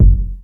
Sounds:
thump

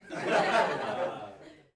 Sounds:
human voice, laughter, chortle

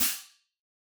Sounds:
hi-hat, cymbal, music, percussion, musical instrument

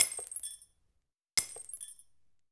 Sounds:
shatter, glass

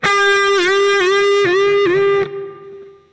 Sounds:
musical instrument, guitar, electric guitar, plucked string instrument, music

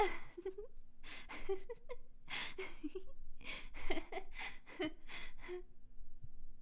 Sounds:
laughter, human voice, giggle

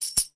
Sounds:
musical instrument, tambourine, music, percussion

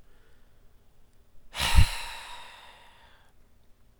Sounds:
breathing, respiratory sounds

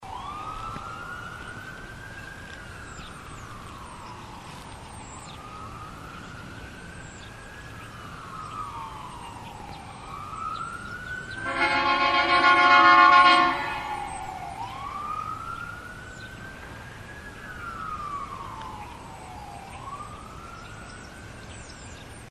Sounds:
vehicle, siren, alarm, motor vehicle (road)

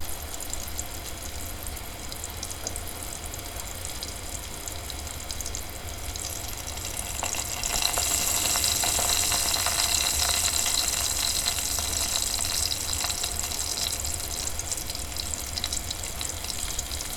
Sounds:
home sounds, frying (food)

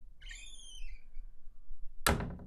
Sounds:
home sounds, slam, door

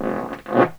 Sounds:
fart

